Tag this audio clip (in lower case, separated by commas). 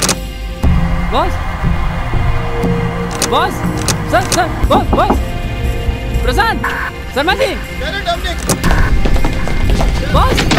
music, speech